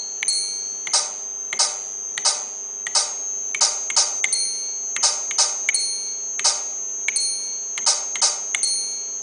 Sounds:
Music

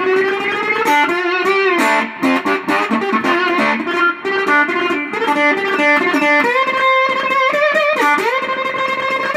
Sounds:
Plucked string instrument, Music, Tapping (guitar technique), Musical instrument, Guitar

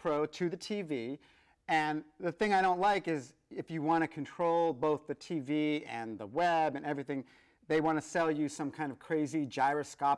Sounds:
Speech

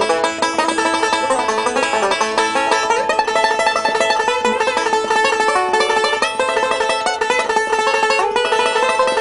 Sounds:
playing banjo

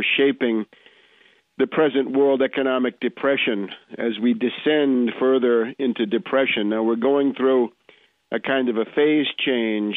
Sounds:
Speech

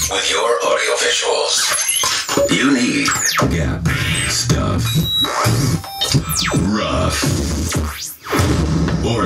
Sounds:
Speech, Music

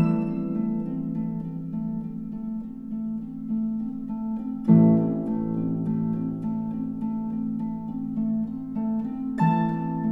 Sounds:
Music

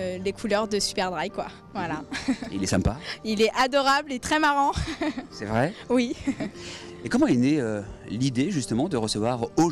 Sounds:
Speech

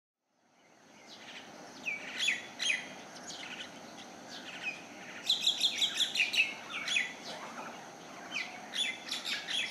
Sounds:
tweet, bird song, Bird

